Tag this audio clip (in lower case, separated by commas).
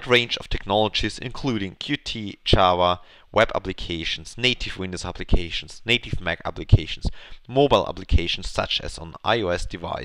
speech